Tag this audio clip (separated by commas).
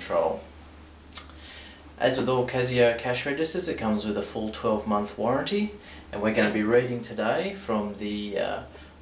Speech